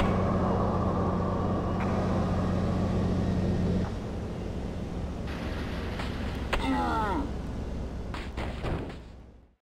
A car idling while traffic is passing by in the background